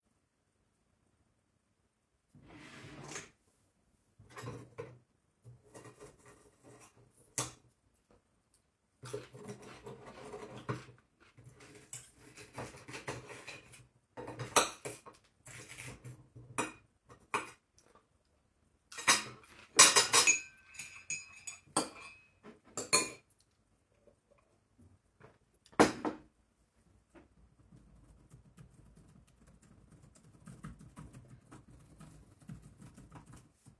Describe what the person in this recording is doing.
Open drawer. Start cutting with cutlery on the dishes and eating. Cutlery on cup. Short typing.